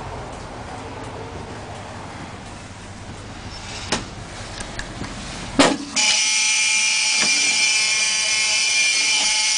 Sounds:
Vehicle, Bus

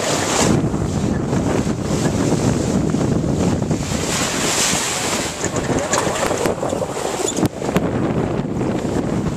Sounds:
sailing ship, sailing, Water vehicle, Vehicle

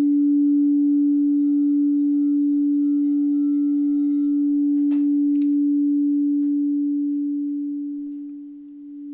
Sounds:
singing bowl

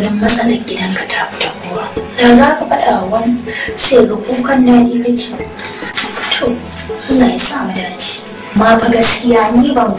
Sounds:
inside a small room, Music, Speech

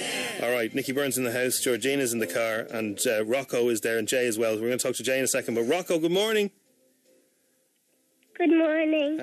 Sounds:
Speech

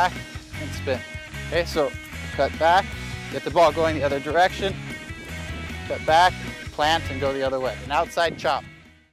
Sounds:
Speech, Music

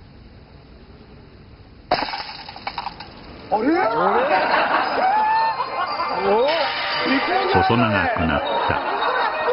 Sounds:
Music, Speech

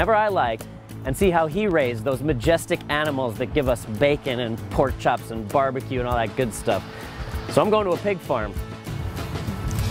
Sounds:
Music, Speech

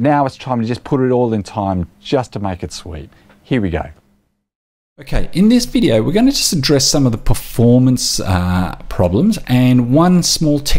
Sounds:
Speech

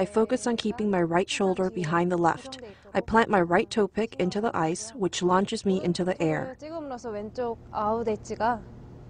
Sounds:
Speech

